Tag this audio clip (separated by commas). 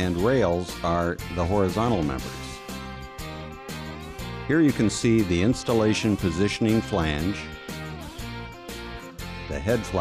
Speech, Music